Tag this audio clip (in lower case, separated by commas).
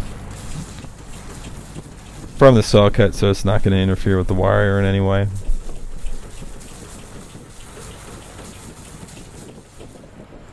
speech, vehicle